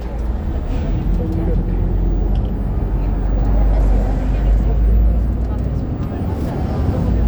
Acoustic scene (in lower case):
bus